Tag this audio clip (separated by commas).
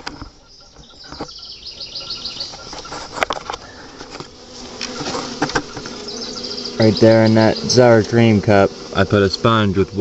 bee or wasp, Fly, Insect